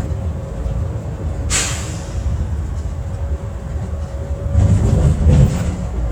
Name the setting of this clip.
bus